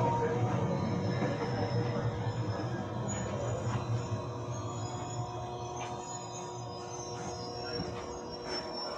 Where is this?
on a subway train